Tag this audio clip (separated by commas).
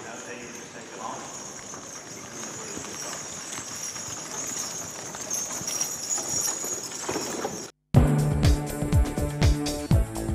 Speech, Clip-clop, Music, Animal, Horse